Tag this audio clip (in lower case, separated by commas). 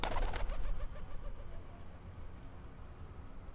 bird, animal, wild animals